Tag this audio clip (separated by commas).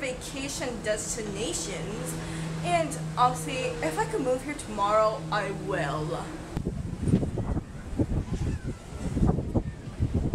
Speech, outside, rural or natural, outside, urban or man-made